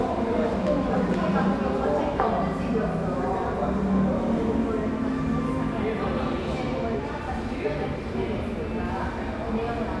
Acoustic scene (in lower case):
cafe